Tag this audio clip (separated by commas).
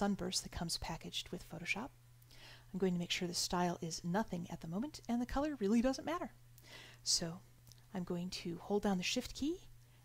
Speech